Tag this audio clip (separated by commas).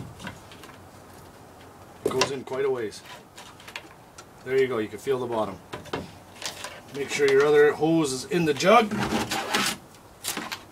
Speech